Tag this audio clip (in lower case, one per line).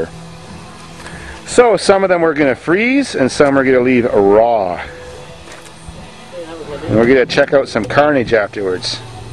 speech